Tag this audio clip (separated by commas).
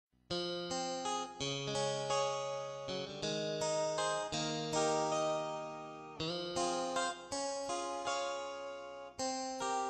Harpsichord, Music